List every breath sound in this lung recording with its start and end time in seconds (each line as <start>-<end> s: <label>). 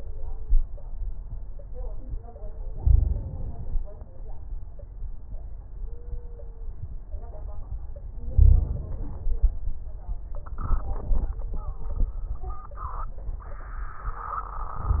2.74-3.92 s: inhalation
2.74-3.92 s: crackles
8.34-9.33 s: inhalation
8.34-9.33 s: crackles